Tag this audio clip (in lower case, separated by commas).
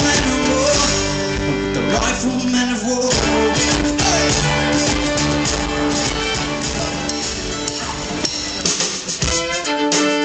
musical instrument, music, bowed string instrument